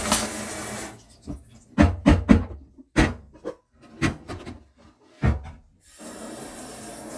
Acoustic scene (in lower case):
kitchen